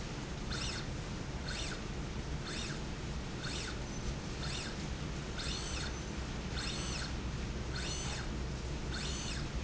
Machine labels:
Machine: slide rail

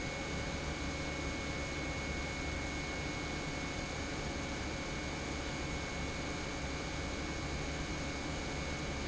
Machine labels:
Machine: pump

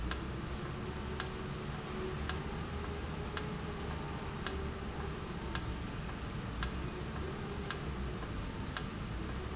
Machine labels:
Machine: valve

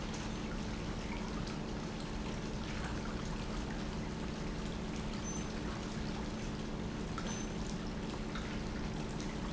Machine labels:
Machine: pump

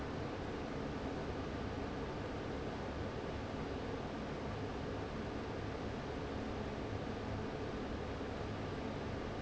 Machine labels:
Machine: fan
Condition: abnormal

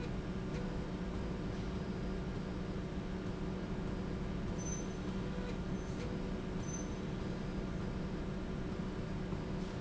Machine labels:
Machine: slide rail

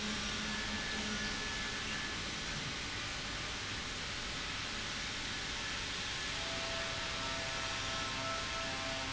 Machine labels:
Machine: pump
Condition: normal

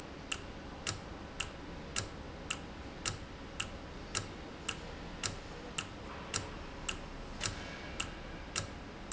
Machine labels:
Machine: valve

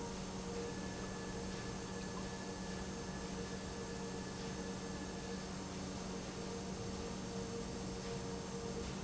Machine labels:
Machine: pump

